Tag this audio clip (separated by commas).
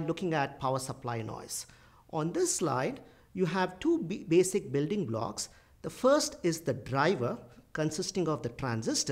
Speech